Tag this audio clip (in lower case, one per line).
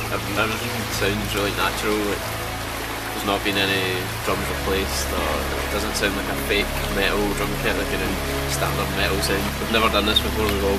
speech
music